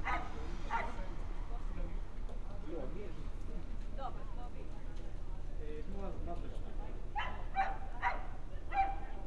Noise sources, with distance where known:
person or small group talking
dog barking or whining, near

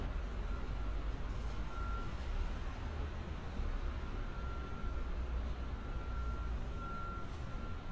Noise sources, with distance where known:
reverse beeper, far

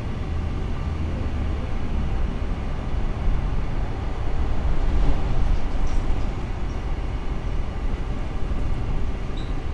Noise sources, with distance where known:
large-sounding engine, near

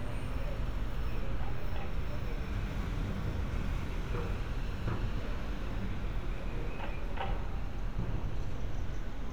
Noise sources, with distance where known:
unidentified human voice, far

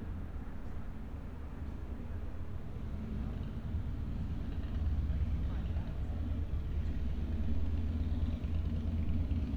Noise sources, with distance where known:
medium-sounding engine, far

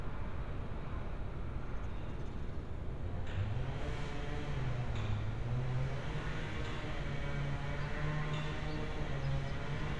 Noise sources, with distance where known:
engine of unclear size

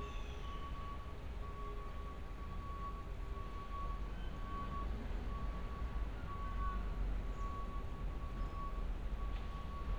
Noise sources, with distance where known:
unidentified alert signal

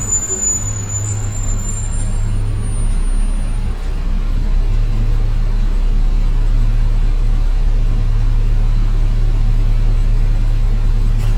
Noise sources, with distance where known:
large-sounding engine, near

